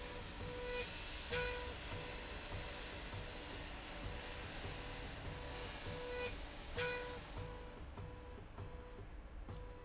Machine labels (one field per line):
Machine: slide rail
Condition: normal